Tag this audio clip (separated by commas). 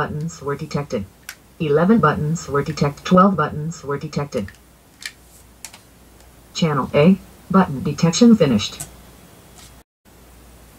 Speech